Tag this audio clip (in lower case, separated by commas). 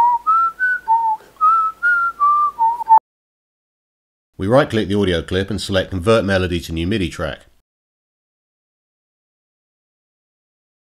whistling